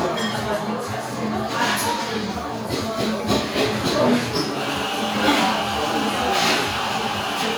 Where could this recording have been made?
in a cafe